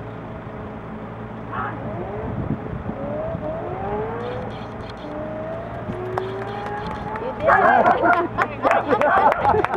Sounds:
speech
vehicle

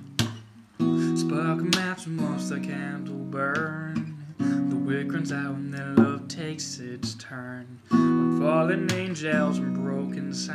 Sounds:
guitar
music
musical instrument
plucked string instrument

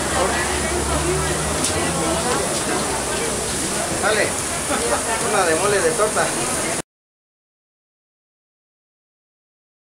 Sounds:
speech

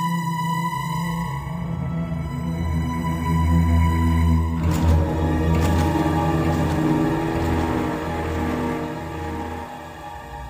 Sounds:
scary music
music

